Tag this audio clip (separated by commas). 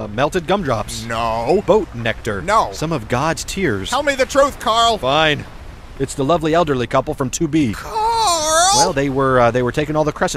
Speech